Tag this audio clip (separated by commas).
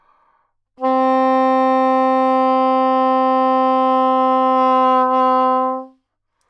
Music, Musical instrument, woodwind instrument